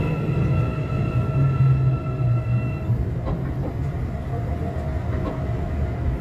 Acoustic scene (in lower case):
subway train